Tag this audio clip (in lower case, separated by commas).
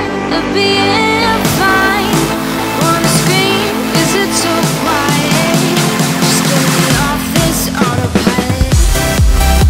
electronic dance music, music, house music